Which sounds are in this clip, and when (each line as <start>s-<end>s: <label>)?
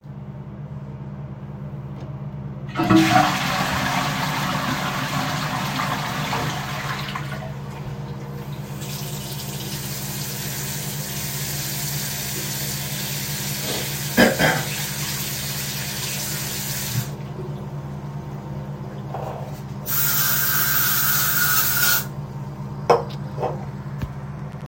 2.5s-7.8s: toilet flushing
8.7s-17.2s: running water